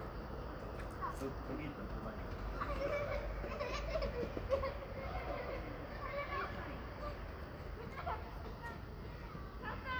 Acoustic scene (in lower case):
residential area